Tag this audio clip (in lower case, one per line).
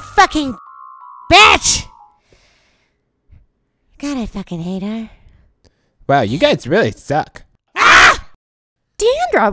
inside a small room
speech
music